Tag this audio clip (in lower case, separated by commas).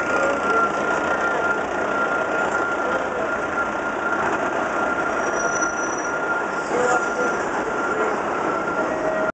reversing beeps, vehicle